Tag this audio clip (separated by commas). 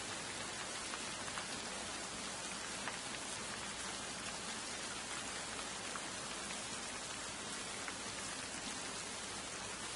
Rain on surface